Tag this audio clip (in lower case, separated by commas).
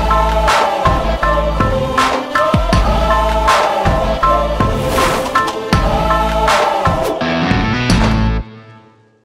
music